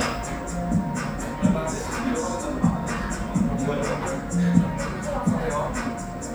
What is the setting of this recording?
restaurant